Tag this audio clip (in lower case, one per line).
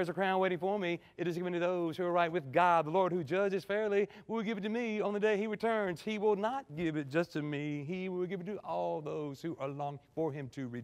speech